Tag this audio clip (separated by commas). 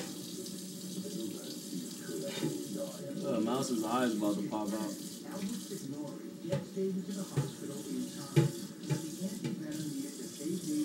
Speech, Animal